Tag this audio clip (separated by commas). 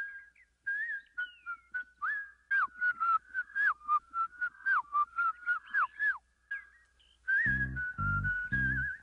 Whistle